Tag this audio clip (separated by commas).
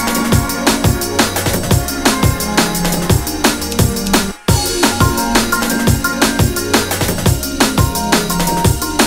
Drum and bass